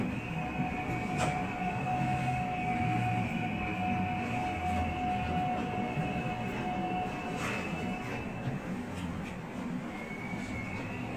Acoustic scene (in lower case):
subway train